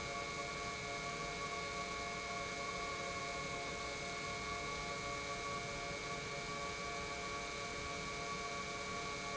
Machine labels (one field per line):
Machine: pump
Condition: normal